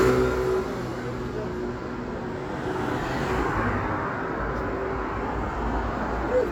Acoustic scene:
street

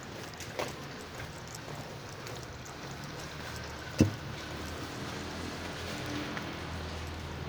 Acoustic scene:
residential area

